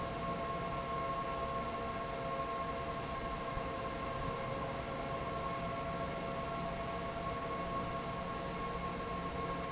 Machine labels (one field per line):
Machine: fan